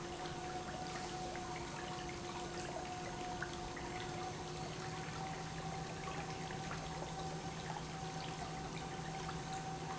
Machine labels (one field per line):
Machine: pump